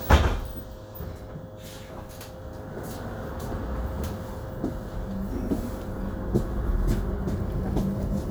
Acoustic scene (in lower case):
bus